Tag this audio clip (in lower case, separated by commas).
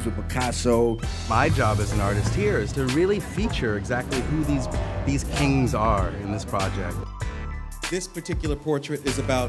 music, speech